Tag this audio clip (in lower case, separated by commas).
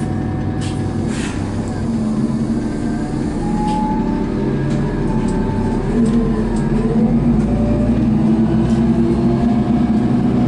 vehicle, bus